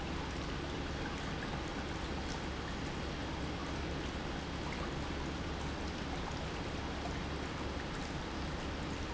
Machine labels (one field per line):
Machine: pump